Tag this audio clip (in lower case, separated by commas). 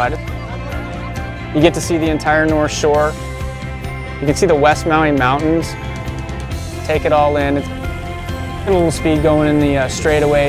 speech, music